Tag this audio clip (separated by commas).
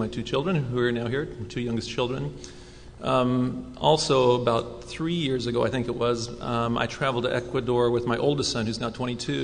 Speech